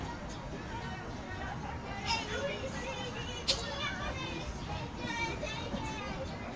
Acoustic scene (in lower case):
park